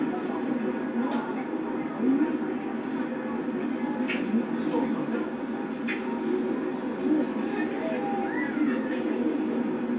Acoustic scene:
park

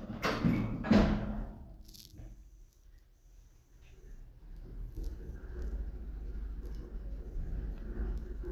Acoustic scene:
elevator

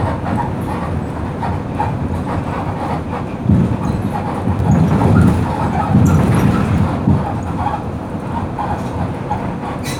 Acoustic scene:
bus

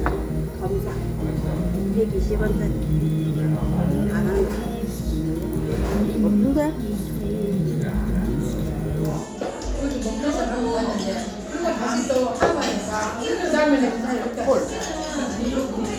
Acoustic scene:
restaurant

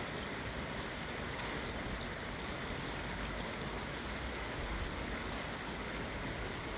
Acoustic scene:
park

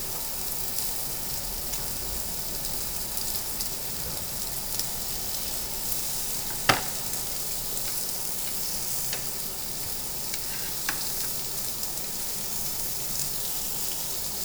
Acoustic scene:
restaurant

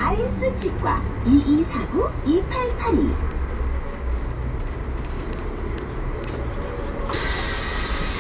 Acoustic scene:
bus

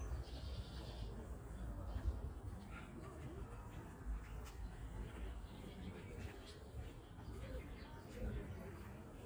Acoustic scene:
park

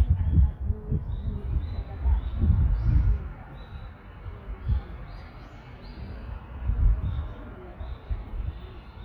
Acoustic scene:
residential area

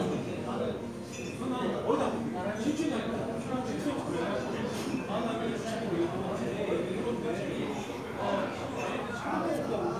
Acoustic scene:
crowded indoor space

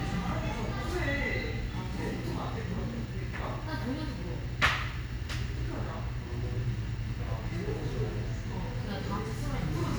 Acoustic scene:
cafe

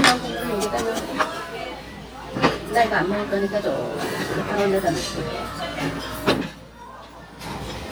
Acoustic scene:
restaurant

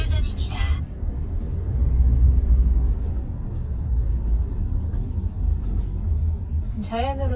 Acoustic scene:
car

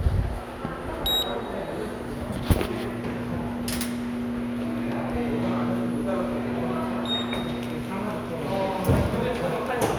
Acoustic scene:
subway station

